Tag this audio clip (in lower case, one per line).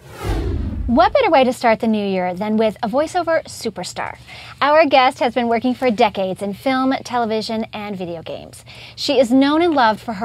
speech